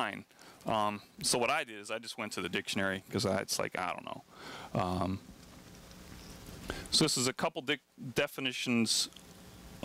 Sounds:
speech

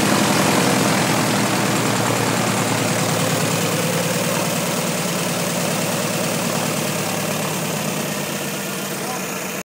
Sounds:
heavy engine (low frequency)
engine
vehicle
aircraft

